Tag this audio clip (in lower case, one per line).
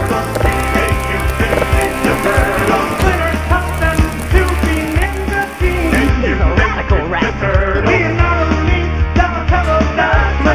music